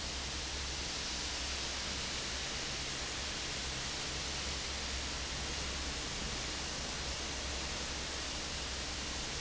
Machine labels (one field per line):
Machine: fan